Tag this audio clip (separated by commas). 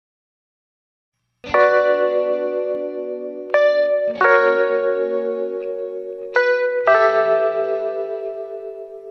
Echo, Music